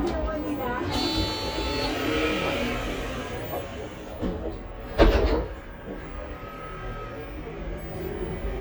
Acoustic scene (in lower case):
bus